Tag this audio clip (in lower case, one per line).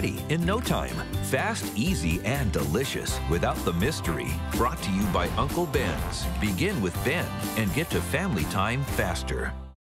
speech
music